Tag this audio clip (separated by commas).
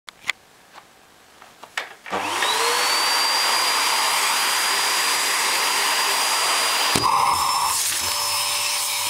Vacuum cleaner